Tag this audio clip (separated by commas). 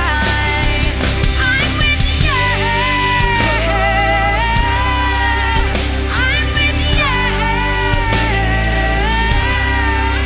Music, Pop music, Singing